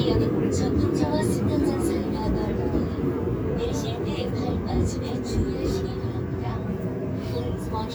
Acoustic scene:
subway train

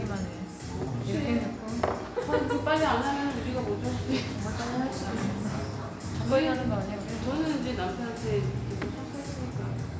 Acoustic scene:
cafe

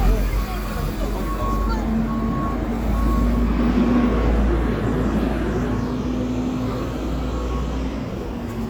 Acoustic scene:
street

